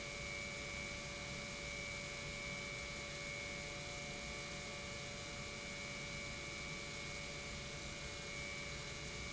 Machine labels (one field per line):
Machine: pump